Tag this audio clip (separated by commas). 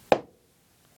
Hammer, Tap, Tools